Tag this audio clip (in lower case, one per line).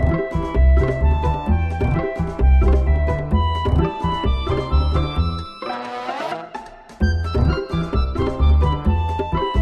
music